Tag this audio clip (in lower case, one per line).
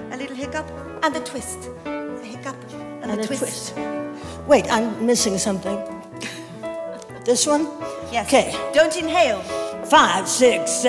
speech
music